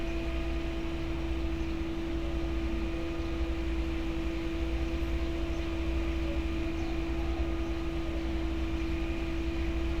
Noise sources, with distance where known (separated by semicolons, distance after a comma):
large-sounding engine, near